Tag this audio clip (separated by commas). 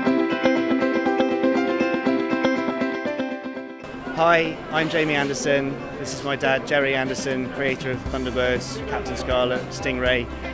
Speech, Music